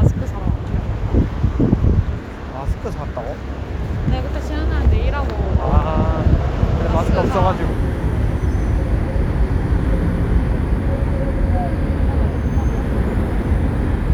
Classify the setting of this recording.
street